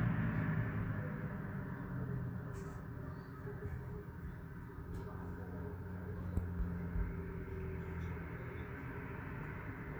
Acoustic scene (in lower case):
street